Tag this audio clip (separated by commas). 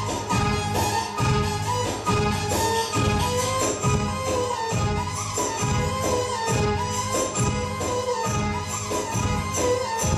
Electronic music, Electronica, Music